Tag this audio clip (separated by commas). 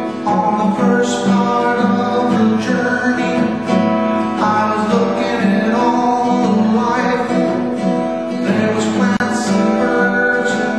Music